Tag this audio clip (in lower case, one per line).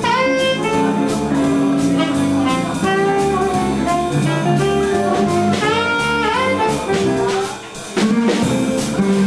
music